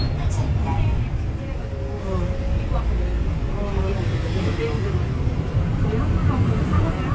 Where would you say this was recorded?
on a bus